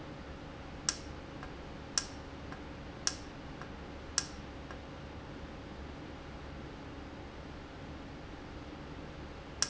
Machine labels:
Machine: valve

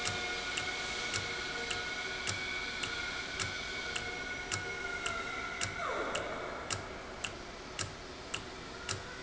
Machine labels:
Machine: valve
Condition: normal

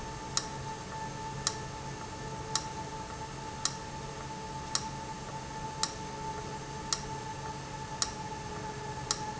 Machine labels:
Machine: valve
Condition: abnormal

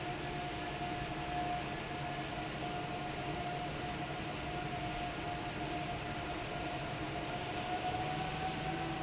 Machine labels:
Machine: fan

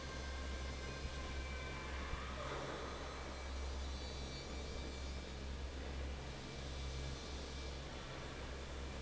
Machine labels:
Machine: fan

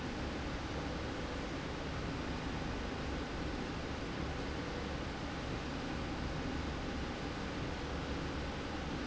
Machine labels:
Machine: slide rail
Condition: normal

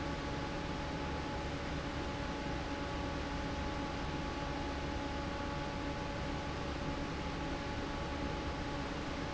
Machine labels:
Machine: fan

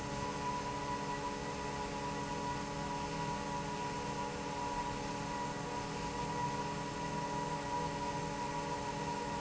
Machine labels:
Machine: fan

